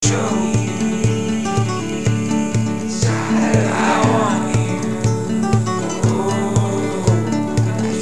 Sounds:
acoustic guitar, human voice, plucked string instrument, music, guitar, musical instrument

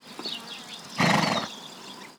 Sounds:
livestock, animal

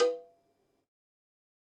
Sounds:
bell, cowbell

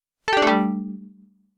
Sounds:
telephone, alarm

